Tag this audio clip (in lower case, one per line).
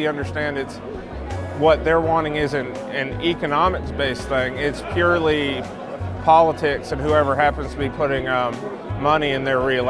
speech
music